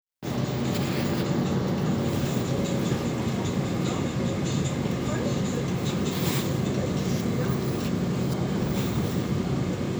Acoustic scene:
subway train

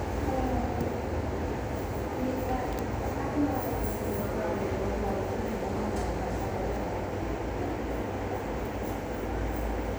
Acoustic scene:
subway station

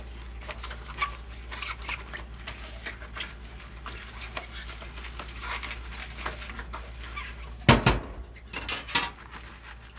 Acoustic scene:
kitchen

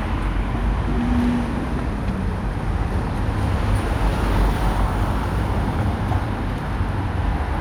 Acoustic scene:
street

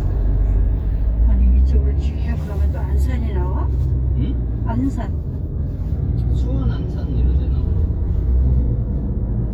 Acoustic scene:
car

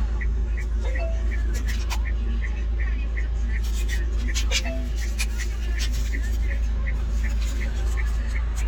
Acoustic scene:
car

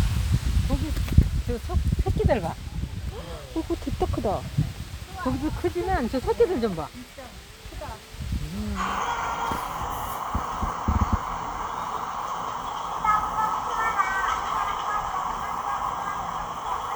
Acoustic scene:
park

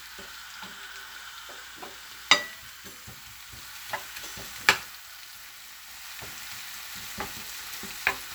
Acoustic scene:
kitchen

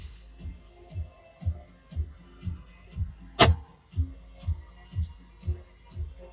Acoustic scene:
car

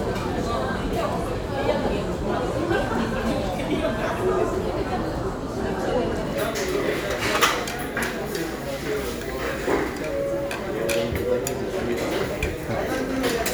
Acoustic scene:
crowded indoor space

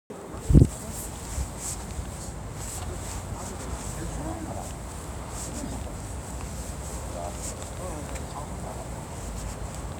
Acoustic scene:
residential area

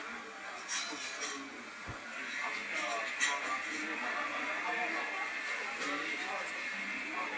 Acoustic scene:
cafe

